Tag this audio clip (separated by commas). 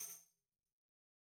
Tambourine, Percussion, Music, Musical instrument